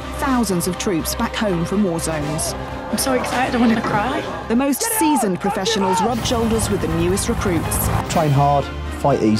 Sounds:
Speech, Music

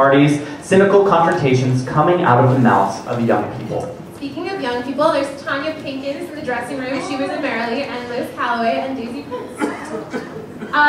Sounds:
Speech

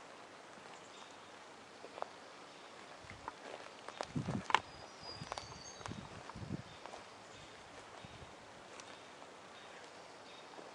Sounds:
Walk

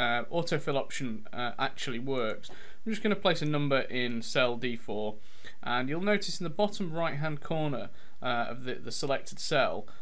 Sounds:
Speech

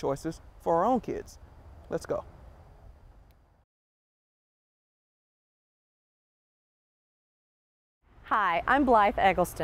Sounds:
Speech

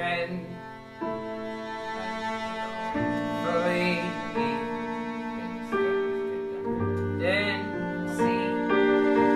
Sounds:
Singing, Music, Classical music

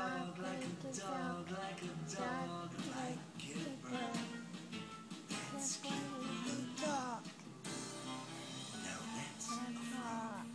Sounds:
Speech, Music

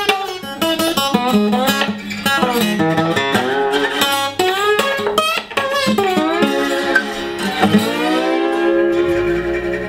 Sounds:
playing steel guitar

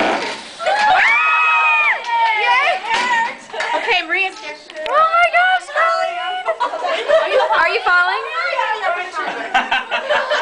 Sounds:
Speech

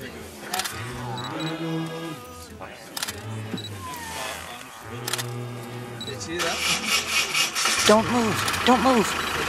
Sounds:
Wild animals, Music, roaring cats, Animal, Speech

